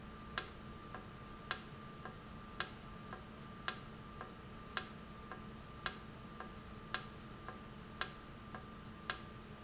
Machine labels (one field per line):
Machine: valve